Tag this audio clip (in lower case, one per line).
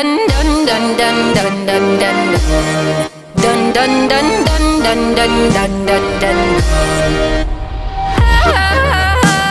yodelling